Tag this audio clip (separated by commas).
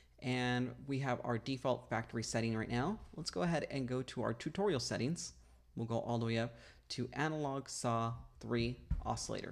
Speech